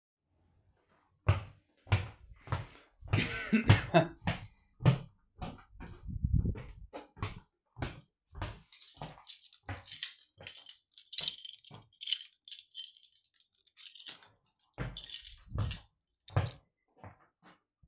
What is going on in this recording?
I was walking to my door, with my keys in my hand and had to cough